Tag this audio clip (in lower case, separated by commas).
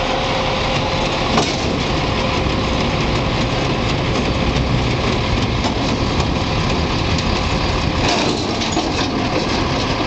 truck, vehicle